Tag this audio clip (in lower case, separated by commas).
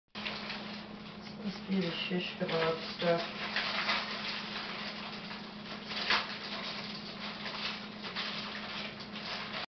speech